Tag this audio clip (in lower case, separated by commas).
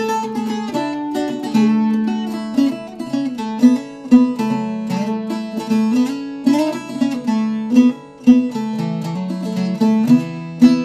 playing mandolin